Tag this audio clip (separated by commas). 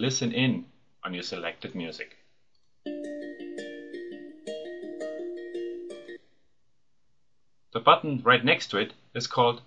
Music, Speech